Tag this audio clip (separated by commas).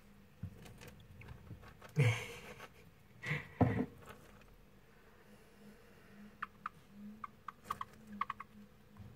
mouse squeaking